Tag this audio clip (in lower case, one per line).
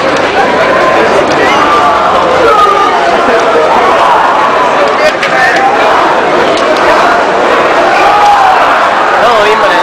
footsteps
speech